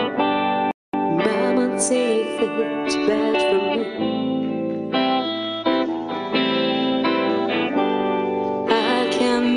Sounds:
Music

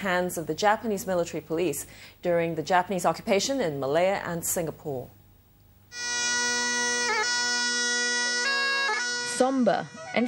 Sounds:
Bagpipes

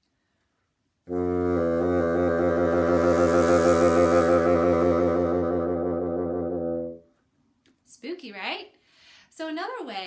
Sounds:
playing bassoon

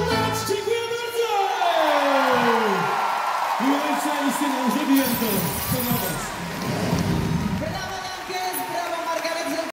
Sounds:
Music, Speech

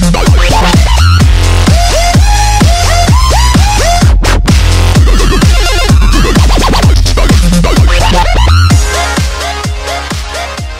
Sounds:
Dubstep

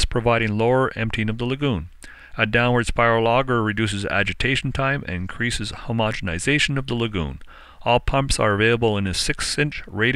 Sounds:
Speech

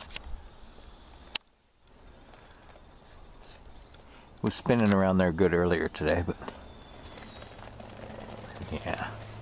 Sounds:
Speech

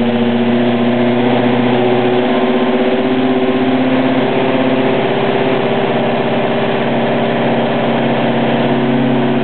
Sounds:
Car, Vehicle, Engine, Medium engine (mid frequency), Idling

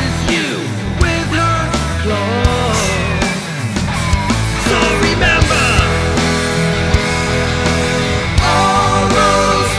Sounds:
Music

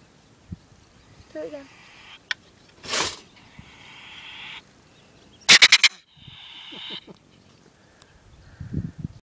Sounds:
Speech

